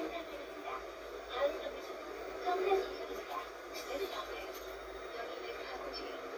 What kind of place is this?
bus